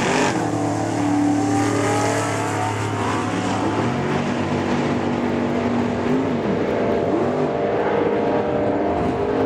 An engine running